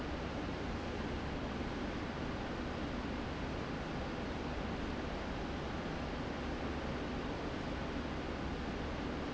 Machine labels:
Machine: fan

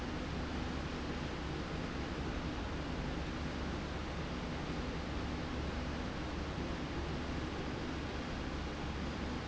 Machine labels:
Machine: slide rail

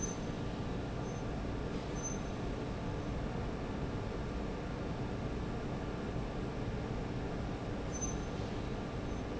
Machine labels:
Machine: fan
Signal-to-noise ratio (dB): -6 dB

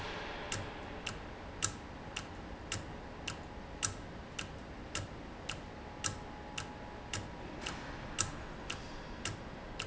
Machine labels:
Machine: valve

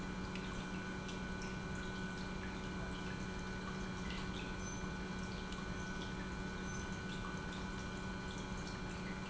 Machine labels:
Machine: pump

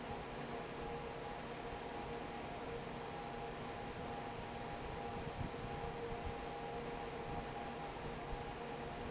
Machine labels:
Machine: fan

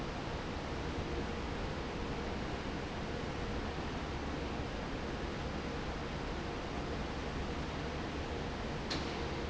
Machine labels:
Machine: fan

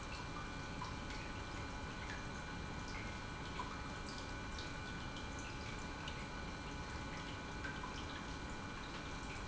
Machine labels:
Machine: pump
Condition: normal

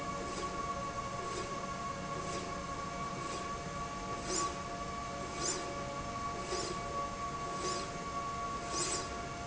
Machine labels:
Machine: slide rail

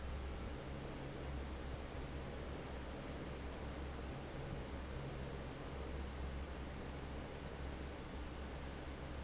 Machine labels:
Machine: fan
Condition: normal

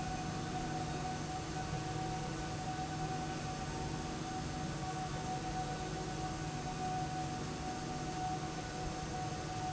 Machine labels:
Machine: slide rail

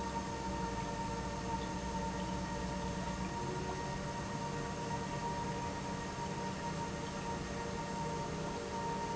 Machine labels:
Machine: pump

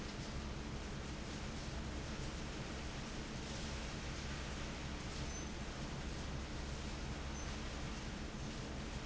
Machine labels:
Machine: fan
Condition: abnormal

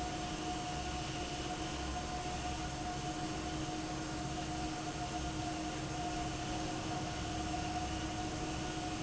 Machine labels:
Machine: fan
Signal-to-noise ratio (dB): -6 dB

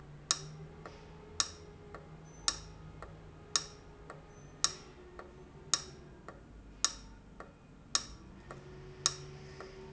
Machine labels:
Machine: valve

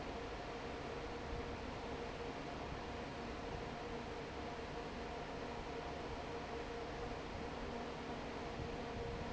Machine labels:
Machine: fan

